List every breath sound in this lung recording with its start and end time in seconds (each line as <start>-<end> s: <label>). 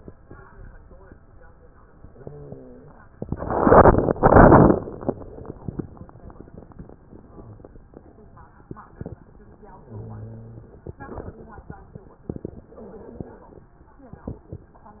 1.87-3.16 s: inhalation
2.08-3.00 s: wheeze
9.64-10.94 s: inhalation
12.62-13.77 s: inhalation